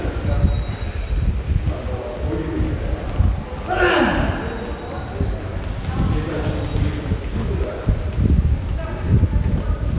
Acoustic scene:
subway station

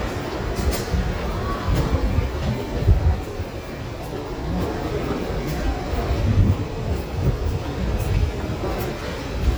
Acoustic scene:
subway station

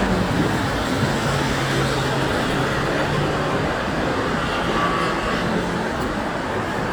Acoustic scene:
street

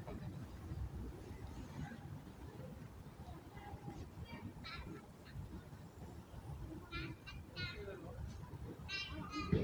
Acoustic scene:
residential area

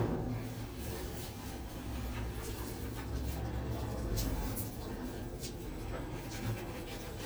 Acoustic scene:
elevator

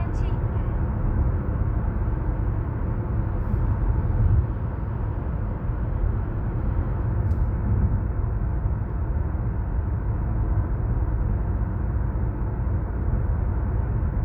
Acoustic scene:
car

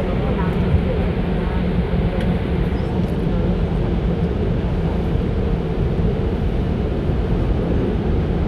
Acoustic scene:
subway train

